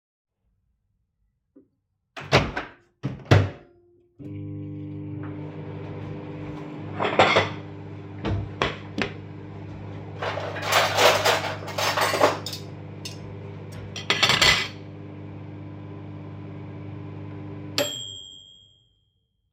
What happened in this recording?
I started a microwave. Then took a dish, a knife and a fork.